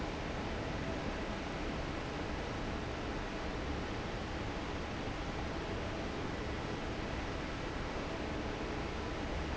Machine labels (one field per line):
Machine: fan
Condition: normal